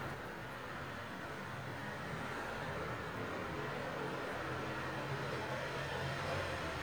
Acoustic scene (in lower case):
residential area